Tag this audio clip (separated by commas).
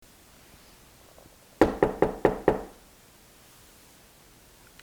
Knock, Domestic sounds, Door